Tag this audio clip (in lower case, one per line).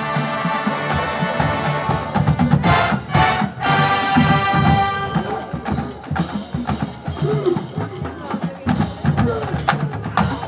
music
speech